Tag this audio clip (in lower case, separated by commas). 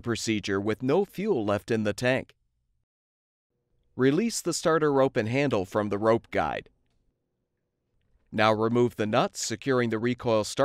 speech